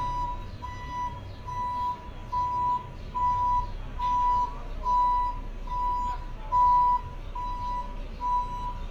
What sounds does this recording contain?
reverse beeper, person or small group talking